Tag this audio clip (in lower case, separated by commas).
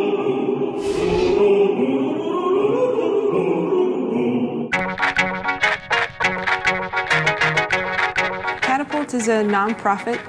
music, speech